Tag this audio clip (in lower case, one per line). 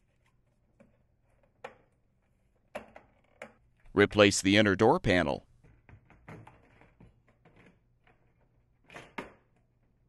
speech